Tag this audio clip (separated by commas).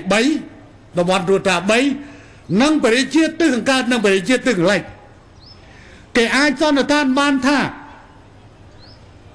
monologue, Speech, Male speech